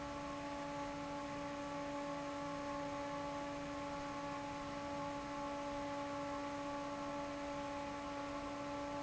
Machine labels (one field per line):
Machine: fan